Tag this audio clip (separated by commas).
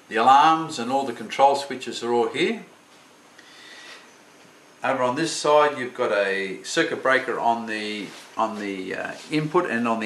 Speech